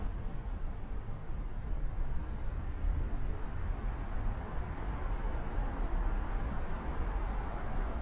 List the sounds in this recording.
medium-sounding engine